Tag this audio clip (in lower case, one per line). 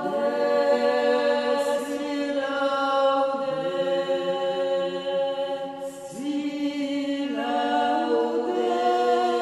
music